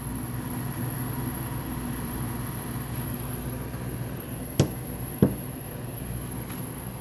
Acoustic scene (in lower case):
kitchen